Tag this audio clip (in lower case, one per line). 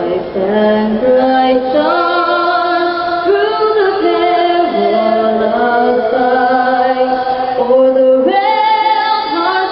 female singing